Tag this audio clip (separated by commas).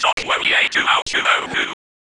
Human voice, Whispering